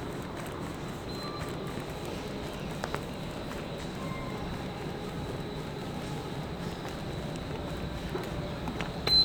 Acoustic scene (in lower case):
subway station